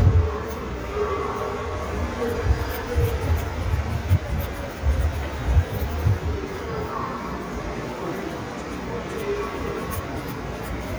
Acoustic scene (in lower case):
subway station